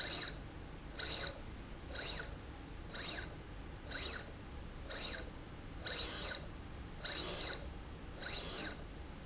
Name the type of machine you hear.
slide rail